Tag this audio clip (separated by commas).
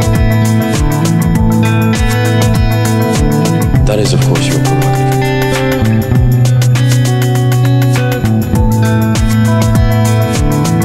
Speech, Music, Techno